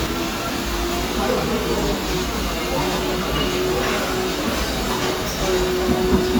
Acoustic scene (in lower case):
cafe